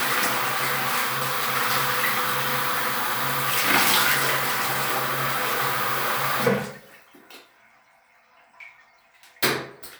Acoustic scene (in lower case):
restroom